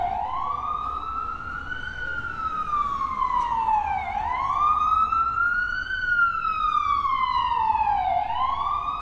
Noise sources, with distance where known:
siren, near

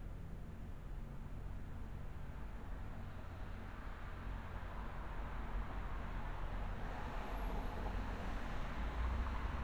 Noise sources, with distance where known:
background noise

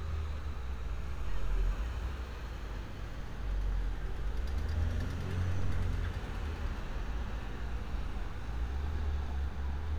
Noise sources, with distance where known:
large-sounding engine

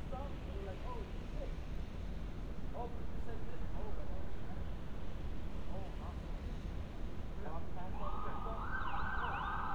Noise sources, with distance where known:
siren

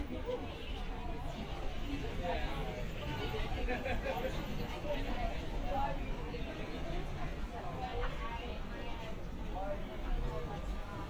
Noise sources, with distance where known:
person or small group talking, near

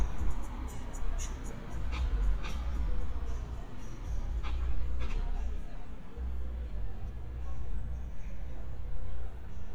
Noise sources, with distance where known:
music from a moving source

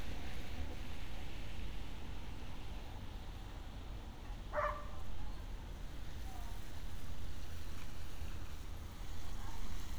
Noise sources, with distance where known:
dog barking or whining

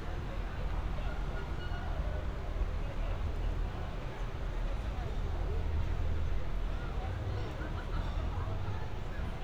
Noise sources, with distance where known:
person or small group talking, far

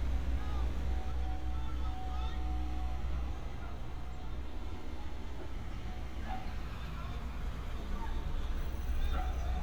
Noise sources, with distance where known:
person or small group shouting, far; dog barking or whining

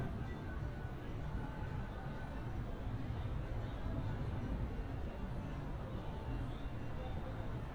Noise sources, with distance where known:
music from a fixed source, far

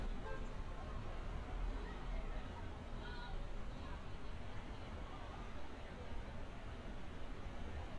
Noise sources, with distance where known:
car horn, far

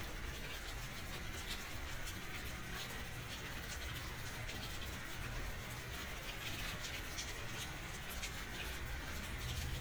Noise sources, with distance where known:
background noise

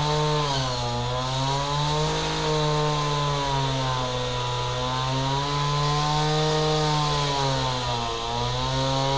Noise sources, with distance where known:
chainsaw, near

